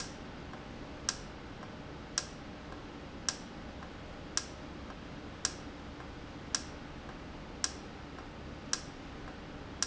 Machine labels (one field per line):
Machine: valve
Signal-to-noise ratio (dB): 0 dB